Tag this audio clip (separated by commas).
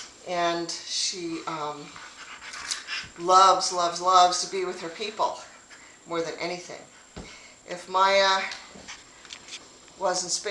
Animal, Speech, Domestic animals, Dog